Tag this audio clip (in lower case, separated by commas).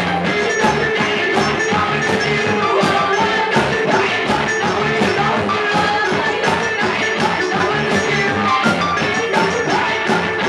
music